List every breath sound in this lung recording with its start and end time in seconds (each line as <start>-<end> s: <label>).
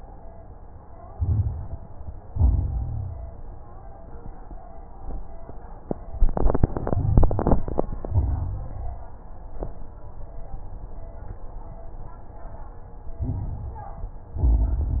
1.10-1.92 s: inhalation
1.10-1.92 s: crackles
2.15-3.27 s: exhalation
2.15-3.27 s: crackles
6.82-7.97 s: inhalation
6.82-7.97 s: crackles
8.02-9.16 s: exhalation
8.02-9.16 s: crackles
13.09-14.24 s: inhalation
13.09-14.24 s: crackles
14.33-15.00 s: exhalation
14.33-15.00 s: crackles